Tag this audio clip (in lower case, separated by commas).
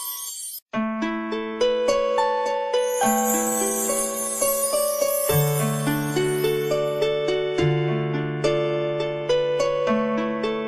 music